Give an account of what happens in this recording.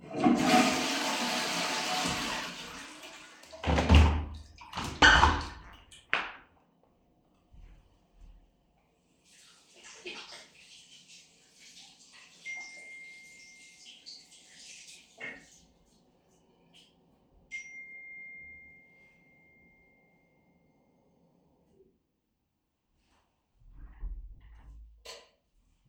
I flushed the toilet and opened the window, then washed my hands. While washing, my phone received notifications. I turned off the tap, grabbed my phone, and switched off the light.